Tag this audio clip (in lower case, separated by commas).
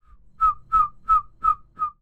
bird, wild animals, animal